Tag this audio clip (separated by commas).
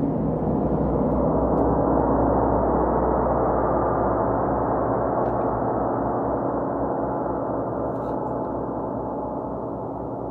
playing gong